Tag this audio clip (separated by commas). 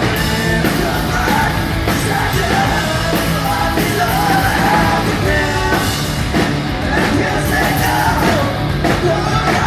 Music, Yell, Singing, Rock music, Punk rock